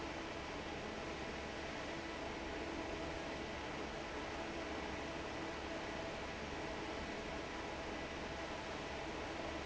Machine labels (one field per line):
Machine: fan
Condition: normal